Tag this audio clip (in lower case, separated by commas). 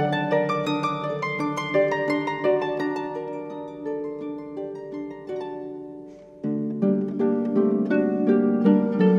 playing harp